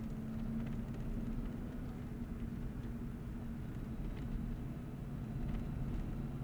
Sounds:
engine

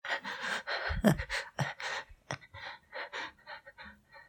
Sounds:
respiratory sounds, breathing

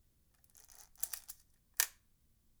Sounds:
mechanisms, camera

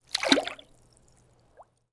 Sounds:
water, liquid, splatter

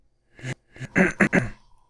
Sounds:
cough, respiratory sounds

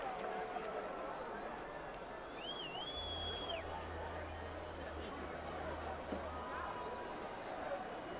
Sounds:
crowd, human group actions

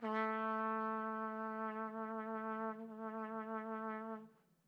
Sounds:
music, musical instrument, trumpet, brass instrument

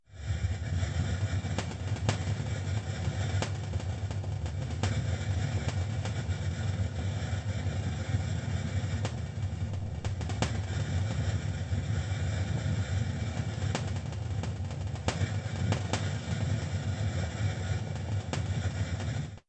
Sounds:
hiss

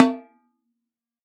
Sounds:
musical instrument, music, percussion, snare drum, drum

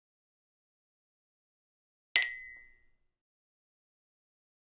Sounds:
clink, glass

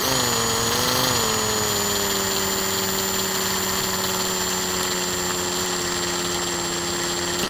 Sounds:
tools

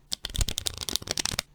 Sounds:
domestic sounds

